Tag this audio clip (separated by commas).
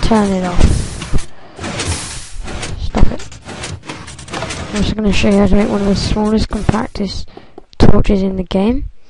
Speech